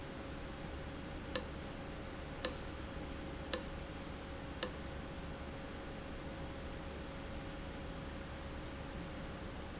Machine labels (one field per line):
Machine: valve